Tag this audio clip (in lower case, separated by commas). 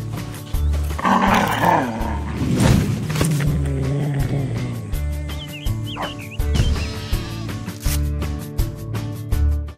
bleat, music, sheep